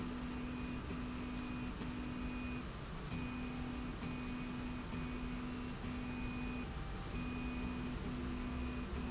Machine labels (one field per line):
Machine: slide rail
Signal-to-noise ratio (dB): 0 dB